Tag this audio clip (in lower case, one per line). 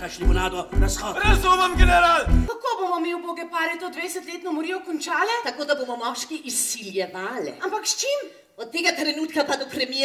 speech